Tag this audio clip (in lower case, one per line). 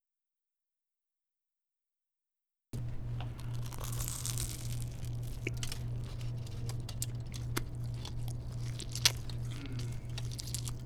chewing